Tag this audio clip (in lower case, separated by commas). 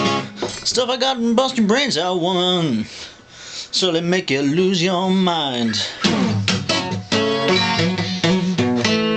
guitar, plucked string instrument, strum, musical instrument, music